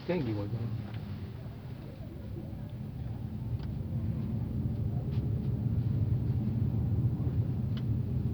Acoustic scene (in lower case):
car